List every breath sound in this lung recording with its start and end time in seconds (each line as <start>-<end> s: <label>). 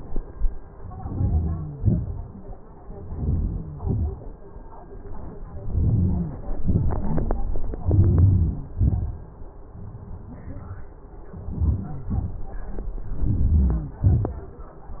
0.99-1.61 s: inhalation
1.83-2.29 s: exhalation
3.10-3.69 s: inhalation
3.83-4.31 s: exhalation
5.67-6.35 s: inhalation
6.58-7.12 s: exhalation
7.99-8.58 s: inhalation
8.86-9.25 s: exhalation
11.49-11.98 s: inhalation
12.12-12.44 s: exhalation
13.42-13.93 s: inhalation
14.04-14.46 s: exhalation